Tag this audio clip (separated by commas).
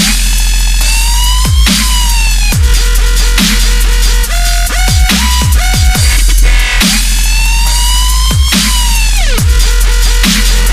Dubstep, Music